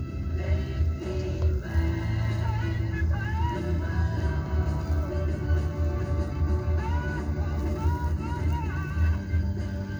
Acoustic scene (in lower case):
car